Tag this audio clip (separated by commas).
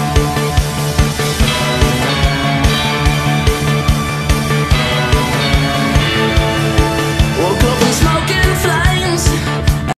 Music